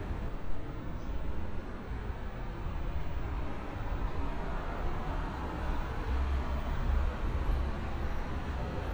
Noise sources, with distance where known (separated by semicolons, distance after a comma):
engine of unclear size